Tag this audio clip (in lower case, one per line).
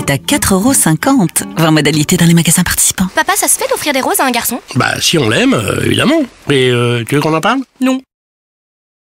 music
speech